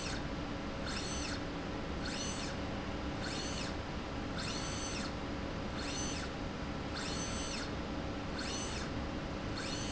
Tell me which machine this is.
slide rail